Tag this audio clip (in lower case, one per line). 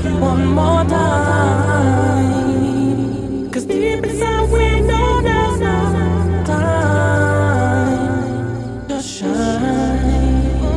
music